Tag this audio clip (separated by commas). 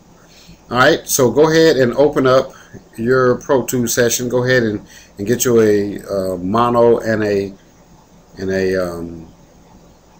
Speech